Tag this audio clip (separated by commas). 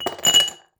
Glass